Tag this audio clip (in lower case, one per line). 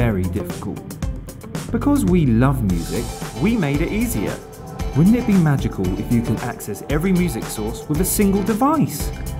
speech
music
soundtrack music